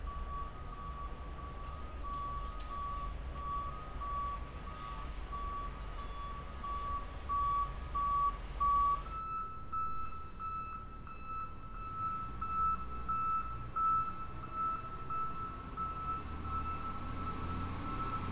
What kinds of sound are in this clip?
reverse beeper